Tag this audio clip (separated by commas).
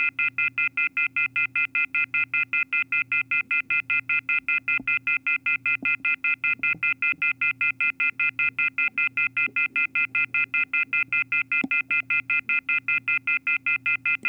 Telephone, Alarm